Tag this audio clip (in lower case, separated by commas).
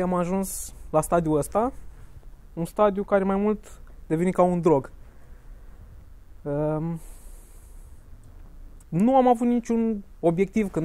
speech